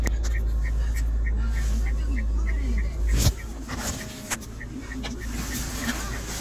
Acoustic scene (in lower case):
car